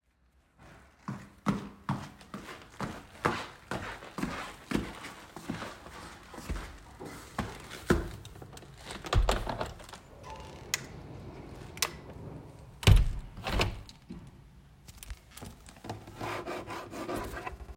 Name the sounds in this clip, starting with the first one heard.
footsteps, window